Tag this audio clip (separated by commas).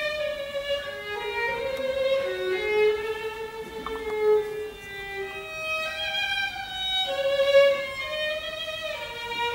fiddle, Music, Musical instrument